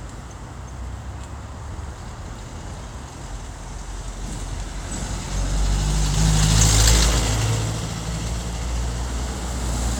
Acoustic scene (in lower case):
street